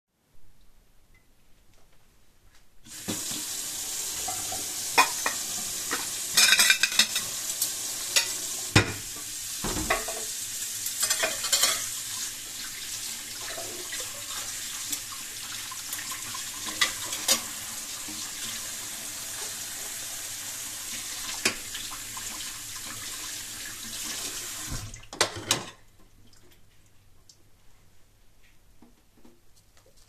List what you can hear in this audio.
running water, cutlery and dishes